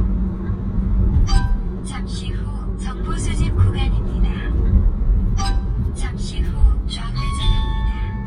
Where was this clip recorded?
in a car